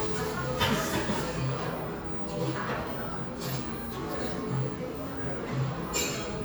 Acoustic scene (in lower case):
cafe